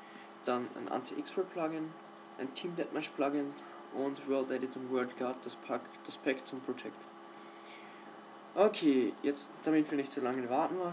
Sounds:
speech

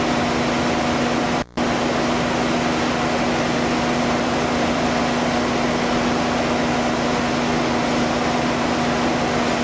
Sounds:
outside, rural or natural, vehicle

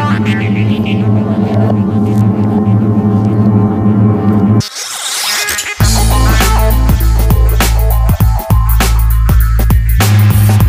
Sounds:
music, whoosh

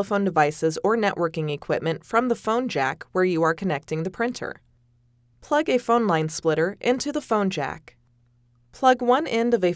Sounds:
speech

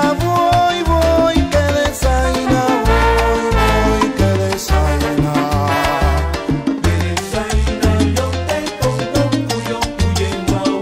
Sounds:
music, music of africa, salsa music

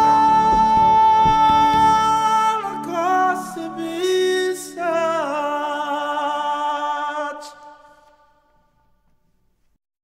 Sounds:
music

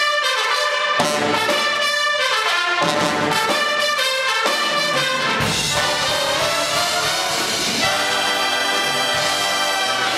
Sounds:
music

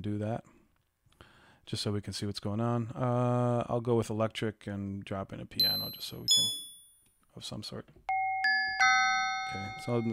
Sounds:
glockenspiel

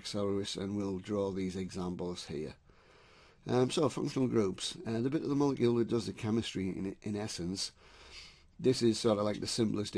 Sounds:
speech

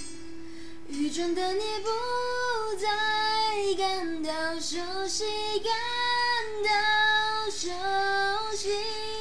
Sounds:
music, female singing

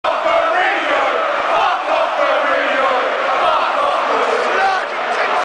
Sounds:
speech

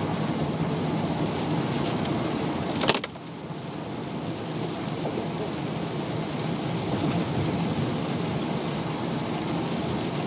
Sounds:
rain on surface, rain

